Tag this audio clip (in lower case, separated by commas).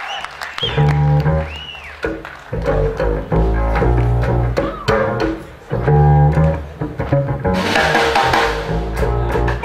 drum, percussion, drum kit, snare drum, rimshot